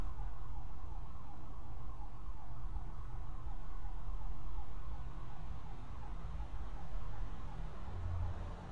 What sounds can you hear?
unidentified alert signal